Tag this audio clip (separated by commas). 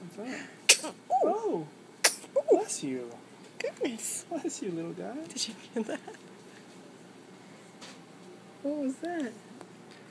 Speech, Sneeze